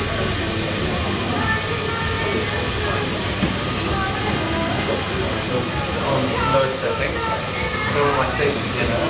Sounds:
Speech, Music

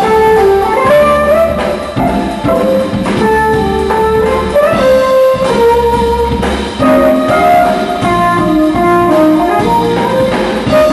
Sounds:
Music

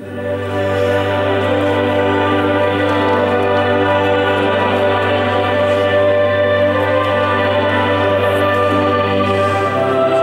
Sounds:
Music, Tender music

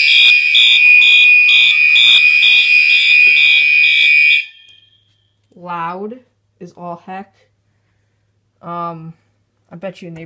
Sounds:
Fire alarm, Speech

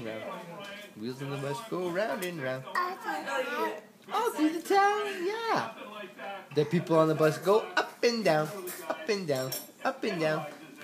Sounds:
Laughter, Speech

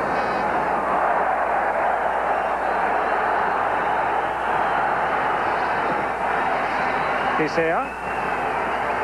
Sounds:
Speech

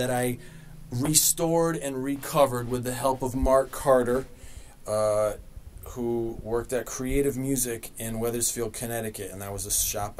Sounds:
Speech

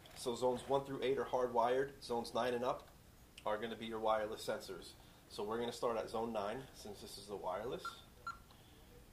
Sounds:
Speech, inside a small room

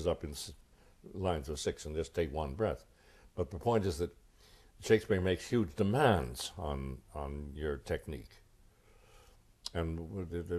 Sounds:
Speech

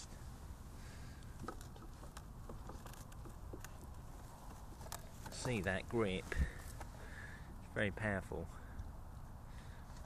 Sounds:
Speech

